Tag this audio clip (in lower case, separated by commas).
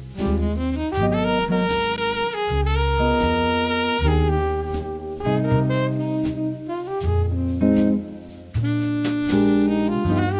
music